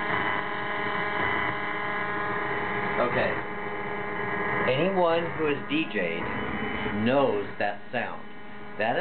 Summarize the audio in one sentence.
Radio signal distortion as man talks